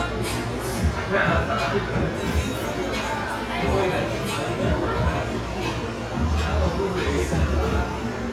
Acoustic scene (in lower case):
cafe